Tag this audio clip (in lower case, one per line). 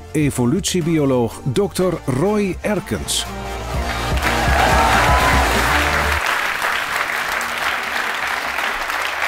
music
speech